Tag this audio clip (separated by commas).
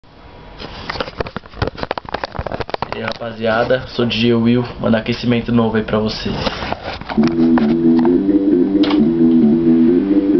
Sampler, Speech, Music